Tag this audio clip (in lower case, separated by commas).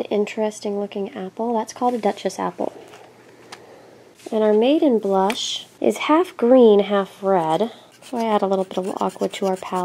speech